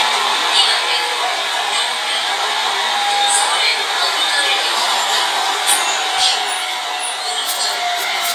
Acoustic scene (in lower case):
subway train